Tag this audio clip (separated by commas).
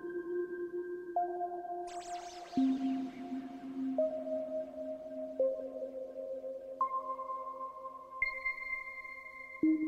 Music